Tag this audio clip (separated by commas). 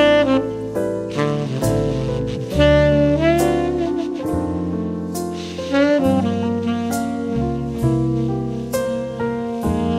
playing saxophone